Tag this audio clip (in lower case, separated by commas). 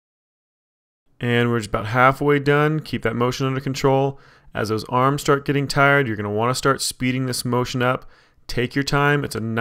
speech